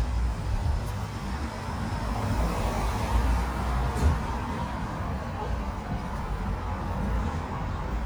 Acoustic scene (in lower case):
street